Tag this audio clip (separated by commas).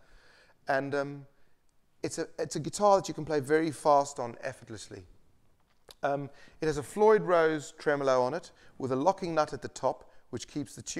Speech